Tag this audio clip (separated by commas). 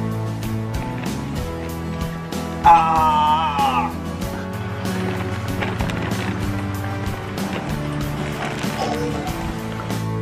bouncing on trampoline